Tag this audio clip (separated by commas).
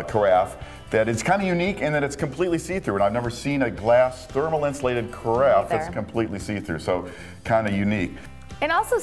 Speech, Music